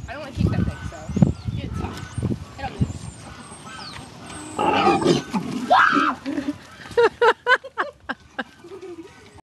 Women talk, yell and laugh as a pig snorts